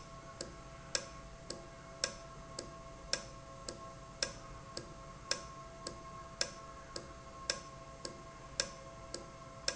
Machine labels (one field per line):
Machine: valve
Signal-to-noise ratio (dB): 6 dB